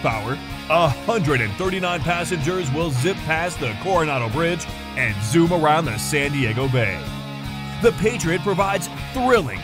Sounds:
music
speech

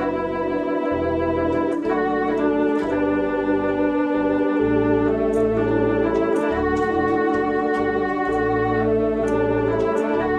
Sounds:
keyboard (musical)
piano
classical music
organ
musical instrument
music

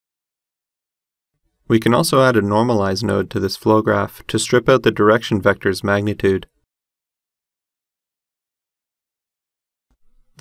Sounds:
silence
speech

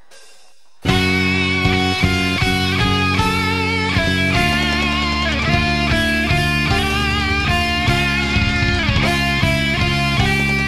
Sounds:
bass guitar
music
strum
musical instrument
plucked string instrument
guitar

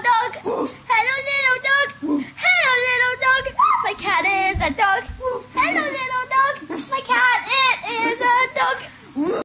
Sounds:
speech

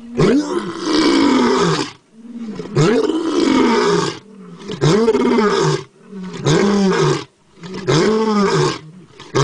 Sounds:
roar
wild animals
lions growling
animal
groan
roaring cats

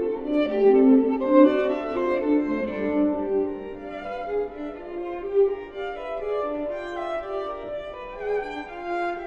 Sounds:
bowed string instrument
violin
playing cello
cello

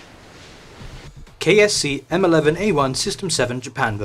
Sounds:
speech
music

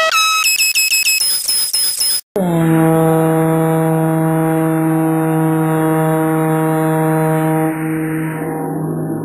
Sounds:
outside, urban or man-made

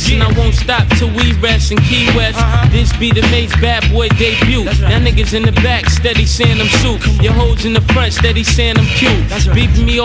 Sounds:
music

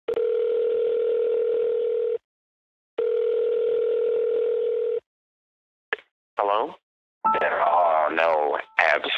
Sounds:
telephone dialing

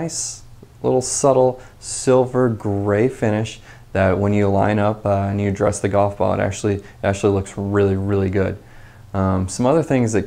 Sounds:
speech

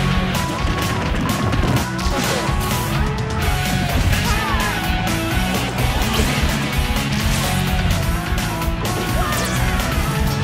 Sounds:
music

